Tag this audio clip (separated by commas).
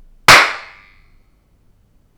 Clapping, Hands